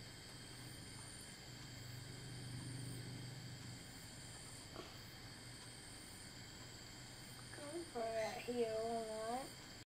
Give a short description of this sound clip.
Bugs are chirping